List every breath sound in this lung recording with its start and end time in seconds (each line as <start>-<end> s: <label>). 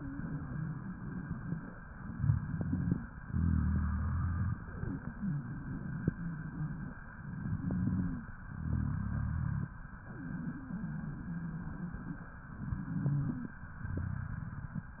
2.03-3.00 s: inhalation
2.11-2.99 s: wheeze
3.25-4.61 s: exhalation
3.25-4.61 s: rhonchi
7.30-8.31 s: inhalation
7.42-8.23 s: wheeze
8.43-9.79 s: exhalation
8.43-9.79 s: rhonchi
12.58-13.59 s: inhalation
12.64-13.44 s: wheeze
13.70-15.00 s: exhalation
13.70-15.00 s: rhonchi